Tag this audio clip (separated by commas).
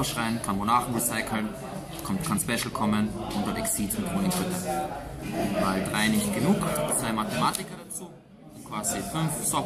Speech